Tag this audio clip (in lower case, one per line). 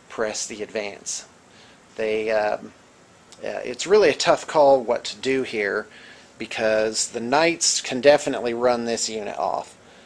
speech